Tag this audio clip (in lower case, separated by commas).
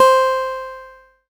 guitar, plucked string instrument, acoustic guitar, music, musical instrument